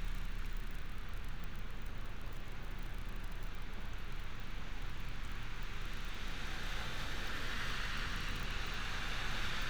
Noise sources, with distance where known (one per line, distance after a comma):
background noise